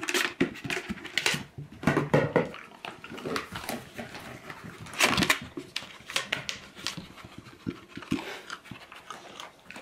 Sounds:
pets, inside a small room

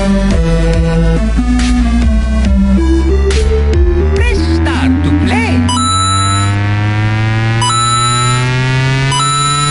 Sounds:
speech, electronic music, dubstep, music

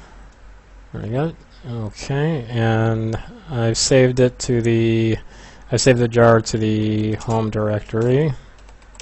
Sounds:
computer keyboard, typing, speech

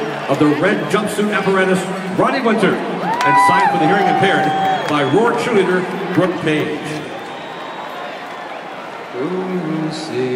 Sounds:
male singing, speech

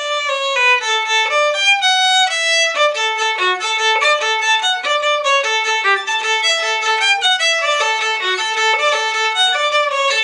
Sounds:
musical instrument, music, fiddle

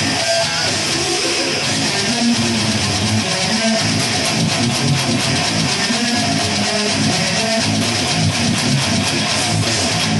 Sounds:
music, plucked string instrument, guitar, electric guitar, musical instrument

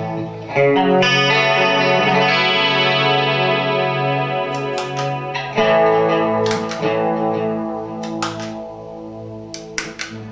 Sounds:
music, guitar, inside a small room, distortion, musical instrument, effects unit

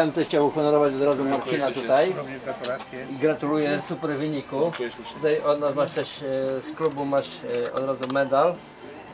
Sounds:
speech, music, man speaking

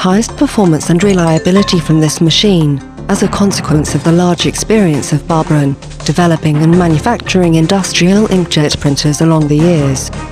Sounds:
speech, music

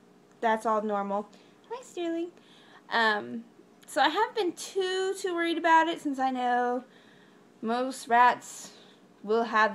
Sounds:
speech

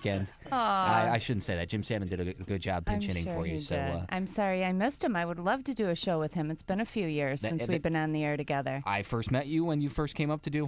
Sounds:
speech

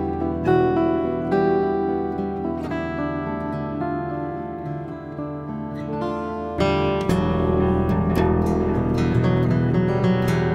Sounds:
music, plucked string instrument, guitar, strum, musical instrument

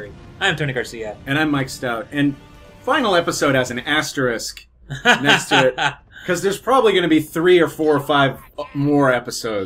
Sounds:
speech, music

